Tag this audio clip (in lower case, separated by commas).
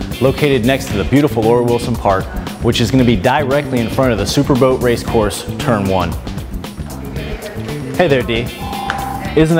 music, speech